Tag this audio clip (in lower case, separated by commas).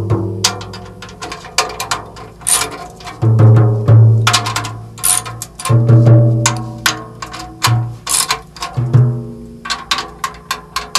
playing timbales